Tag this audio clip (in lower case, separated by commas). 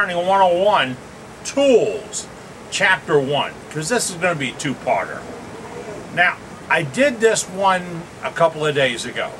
speech